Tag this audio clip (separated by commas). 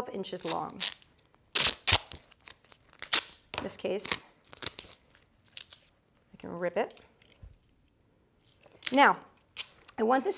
Speech